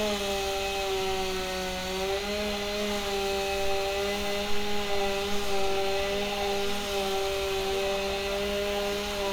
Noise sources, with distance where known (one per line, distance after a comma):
unidentified powered saw, near